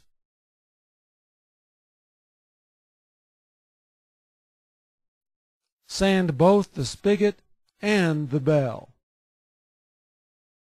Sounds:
speech

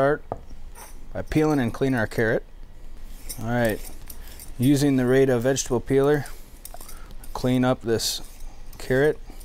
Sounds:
speech

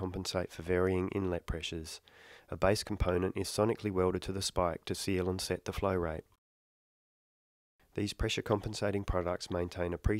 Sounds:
speech

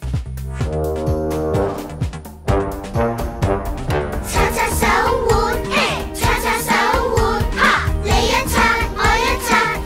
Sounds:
music

